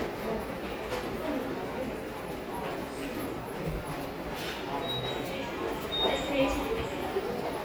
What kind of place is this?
subway station